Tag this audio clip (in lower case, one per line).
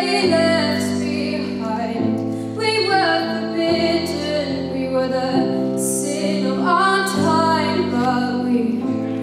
female singing
music